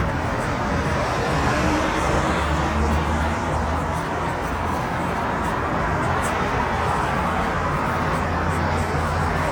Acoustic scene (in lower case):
street